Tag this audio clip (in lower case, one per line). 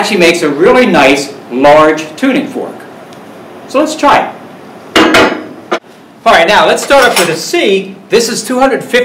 speech